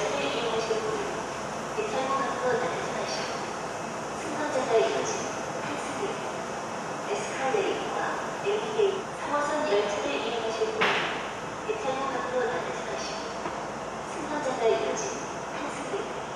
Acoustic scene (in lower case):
subway station